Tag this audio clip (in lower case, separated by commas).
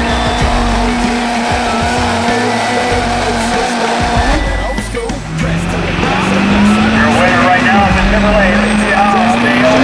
race car, car, vehicle